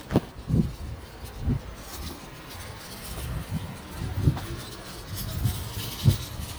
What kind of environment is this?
residential area